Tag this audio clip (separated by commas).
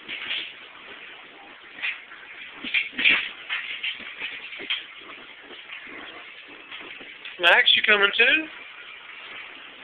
Speech